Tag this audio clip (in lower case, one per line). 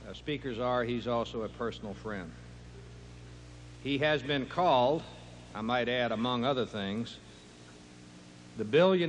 monologue
speech
male speech